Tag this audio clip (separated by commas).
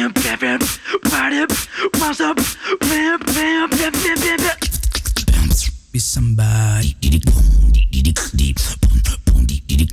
beat boxing